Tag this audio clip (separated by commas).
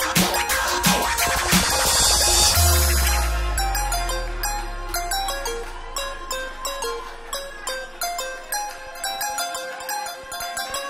fiddle, Musical instrument, Music